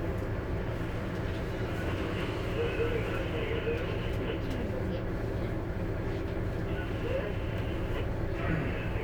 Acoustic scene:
bus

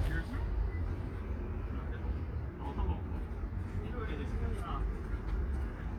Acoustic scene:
street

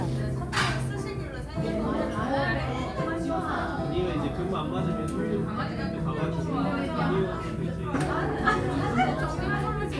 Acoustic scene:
crowded indoor space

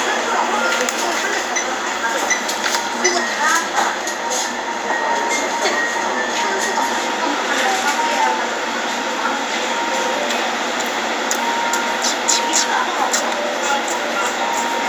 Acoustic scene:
crowded indoor space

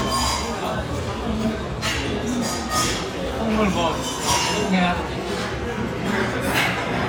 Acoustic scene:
restaurant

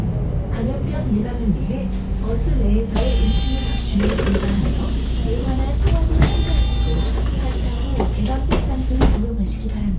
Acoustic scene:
bus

